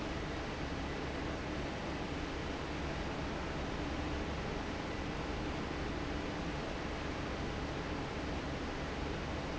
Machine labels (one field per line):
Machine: fan